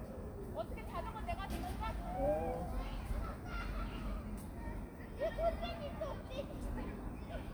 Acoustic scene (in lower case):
park